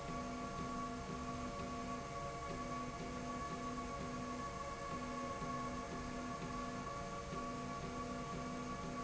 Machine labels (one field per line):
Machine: slide rail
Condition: normal